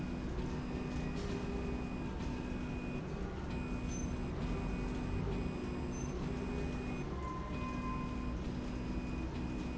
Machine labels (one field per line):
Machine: slide rail